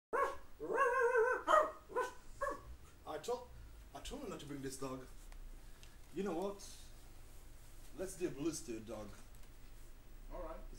A dog is barking quickly and a man speaks